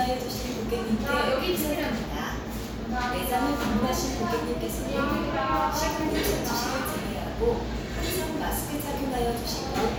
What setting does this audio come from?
cafe